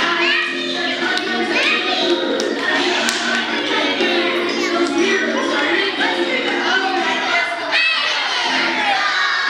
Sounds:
Music, Speech, Female singing

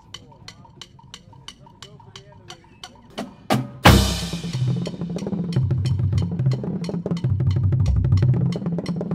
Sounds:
Snare drum, Bass drum, Percussion, Drum, Rimshot

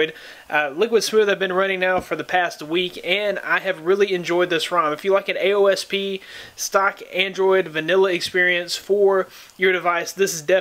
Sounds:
Speech

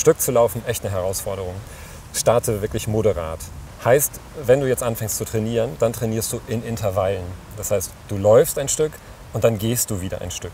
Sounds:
Speech, outside, rural or natural

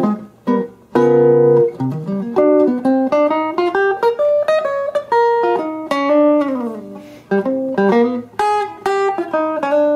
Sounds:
Plucked string instrument, Music, Musical instrument, Strum, Guitar

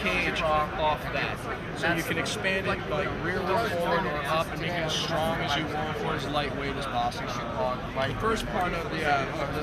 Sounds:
Speech

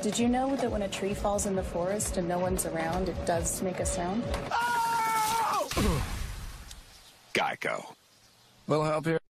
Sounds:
Speech

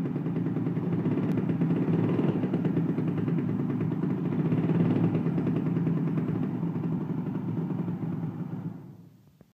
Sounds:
Medium engine (mid frequency), Engine

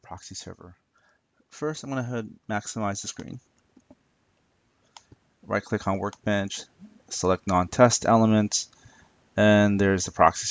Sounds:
Speech, inside a small room

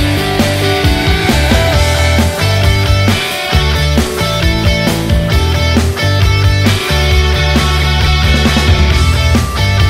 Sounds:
Music

